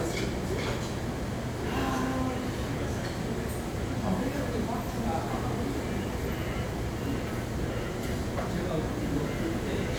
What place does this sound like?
crowded indoor space